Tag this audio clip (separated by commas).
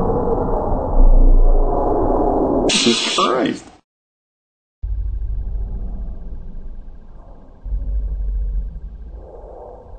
Hiss, Snake